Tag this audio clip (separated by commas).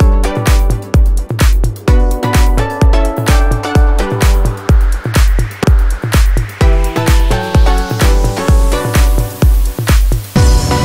Music